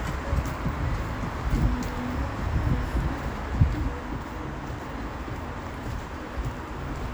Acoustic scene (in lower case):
street